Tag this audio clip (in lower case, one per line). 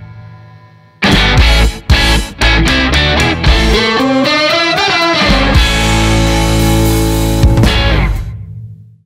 music